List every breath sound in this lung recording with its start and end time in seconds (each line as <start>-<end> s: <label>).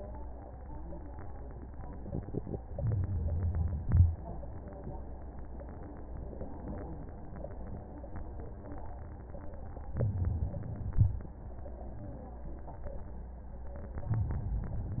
2.68-3.84 s: inhalation
3.83-4.53 s: exhalation
9.90-10.91 s: inhalation
10.92-11.53 s: exhalation
13.96-14.99 s: inhalation